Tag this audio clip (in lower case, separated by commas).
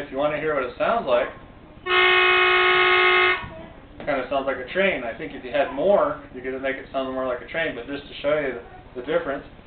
train horn